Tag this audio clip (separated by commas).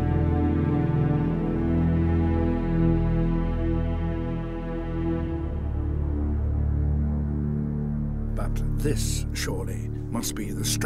Theme music